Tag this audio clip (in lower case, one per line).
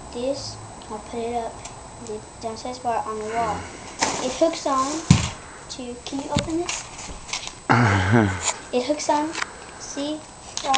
speech